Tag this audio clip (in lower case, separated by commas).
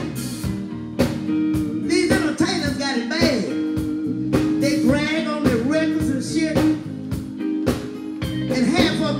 music, speech